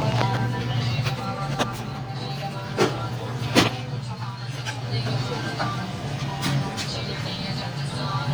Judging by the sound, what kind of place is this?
restaurant